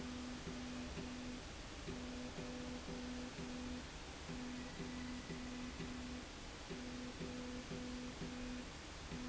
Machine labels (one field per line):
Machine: slide rail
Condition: normal